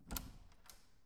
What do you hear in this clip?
door opening